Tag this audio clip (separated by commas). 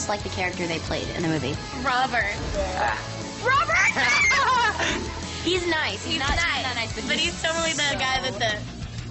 Speech, Music